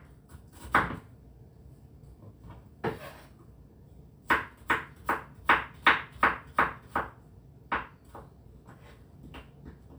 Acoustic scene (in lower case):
kitchen